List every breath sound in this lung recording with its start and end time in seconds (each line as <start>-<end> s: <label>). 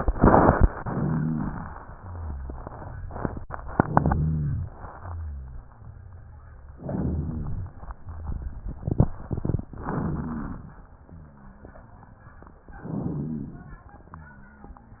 3.78-4.76 s: inhalation
3.82-4.72 s: rhonchi
4.98-5.92 s: exhalation
4.98-5.92 s: rhonchi
6.75-7.71 s: inhalation
9.73-10.88 s: inhalation
9.73-10.88 s: crackles
11.09-11.93 s: exhalation
11.09-11.93 s: rhonchi
12.65-13.86 s: inhalation
12.81-13.80 s: rhonchi